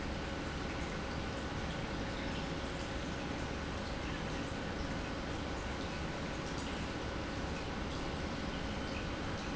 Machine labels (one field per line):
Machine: pump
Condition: normal